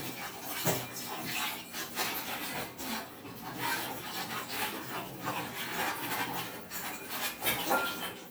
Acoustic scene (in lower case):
kitchen